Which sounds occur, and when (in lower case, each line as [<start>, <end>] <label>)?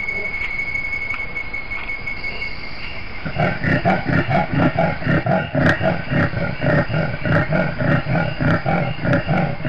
[0.00, 0.26] animal
[0.00, 9.65] background noise
[0.00, 9.65] cricket
[0.38, 0.46] generic impact sounds
[1.08, 1.19] generic impact sounds
[1.76, 1.89] generic impact sounds
[2.79, 2.96] generic impact sounds
[3.23, 9.65] animal
[5.62, 5.74] generic impact sounds